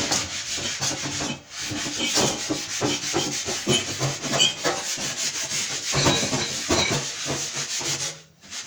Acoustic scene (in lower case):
kitchen